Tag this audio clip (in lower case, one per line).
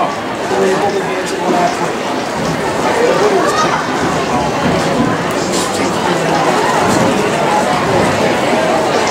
speech